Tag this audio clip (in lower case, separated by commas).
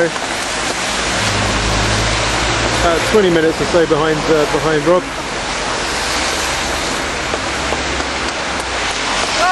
speech, rain